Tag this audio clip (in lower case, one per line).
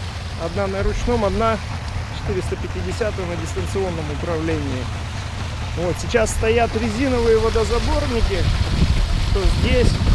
vehicle
motorboat
speech
water vehicle